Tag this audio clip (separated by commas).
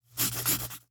home sounds, Writing